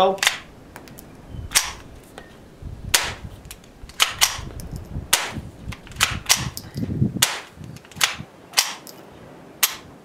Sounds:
cap gun shooting
gunshot
cap gun

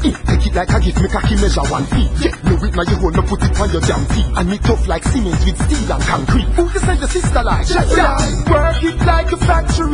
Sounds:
music

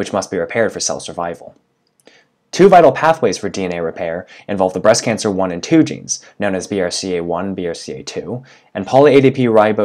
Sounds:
speech

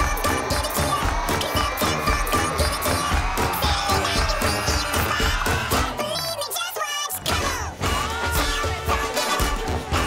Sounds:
music

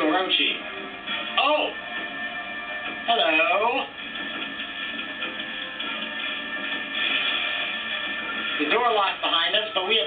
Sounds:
speech
music

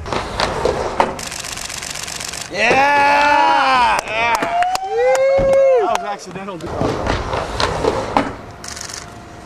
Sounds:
outside, urban or man-made
speech

